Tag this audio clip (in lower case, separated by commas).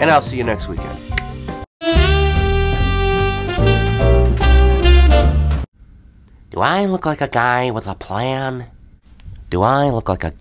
narration, speech, music